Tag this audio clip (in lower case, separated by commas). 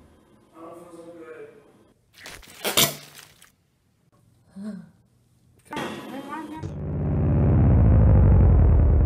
speech